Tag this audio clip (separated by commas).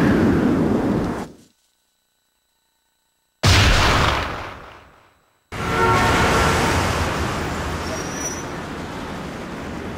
White noise, Music